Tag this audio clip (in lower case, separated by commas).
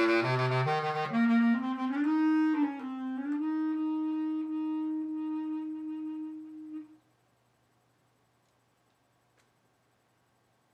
brass instrument